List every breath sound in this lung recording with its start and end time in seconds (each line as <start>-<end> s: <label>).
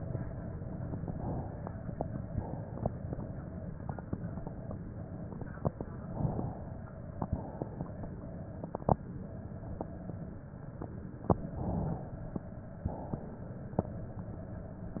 0.81-1.67 s: inhalation
2.32-3.17 s: exhalation
5.96-6.82 s: inhalation
7.22-8.07 s: exhalation
11.34-12.20 s: inhalation
12.96-13.82 s: exhalation